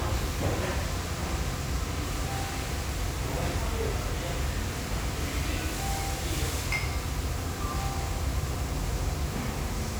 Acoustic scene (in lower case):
restaurant